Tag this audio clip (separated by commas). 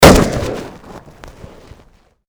Gunshot, Explosion